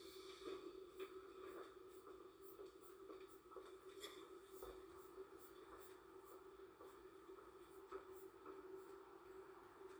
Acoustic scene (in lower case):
subway train